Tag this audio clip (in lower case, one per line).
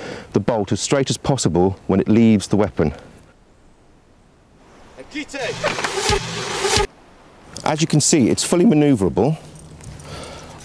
firing cannon